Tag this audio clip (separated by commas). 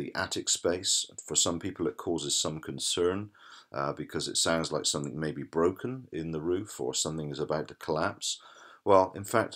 Speech